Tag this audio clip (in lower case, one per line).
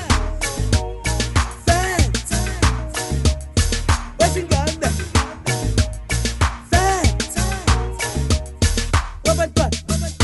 music
afrobeat